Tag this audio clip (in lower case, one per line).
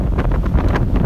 wind